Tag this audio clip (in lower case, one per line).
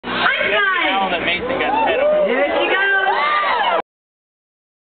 speech